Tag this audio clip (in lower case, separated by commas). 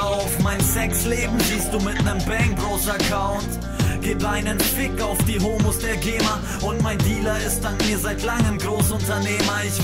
music